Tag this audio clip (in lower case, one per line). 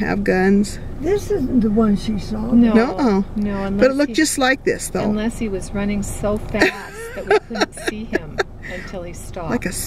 speech